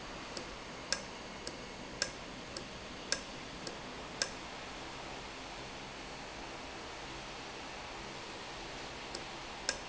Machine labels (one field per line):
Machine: valve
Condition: normal